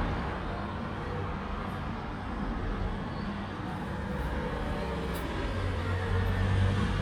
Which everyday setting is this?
street